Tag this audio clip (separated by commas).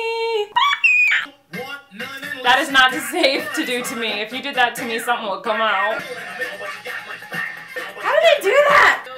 Music, Speech